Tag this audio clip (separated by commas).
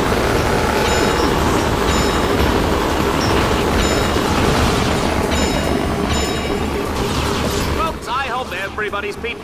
Speech